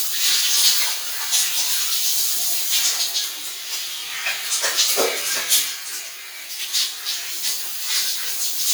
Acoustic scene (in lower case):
restroom